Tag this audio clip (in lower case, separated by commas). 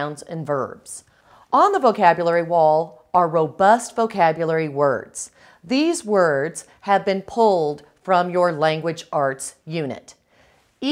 speech